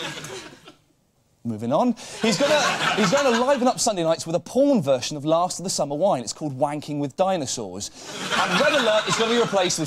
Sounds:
Speech

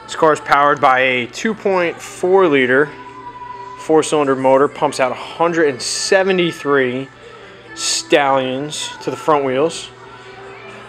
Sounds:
Music, Speech

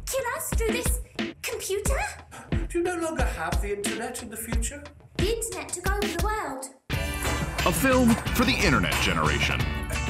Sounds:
Speech, Music

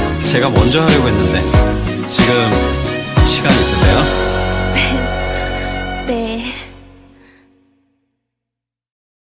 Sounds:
Speech, monologue, Music

